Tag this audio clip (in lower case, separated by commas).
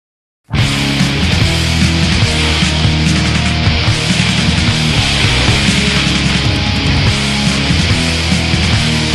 music, punk rock, rock music, angry music, heavy metal